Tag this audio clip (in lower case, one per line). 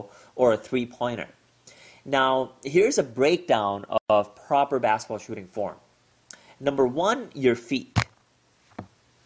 basketball bounce
speech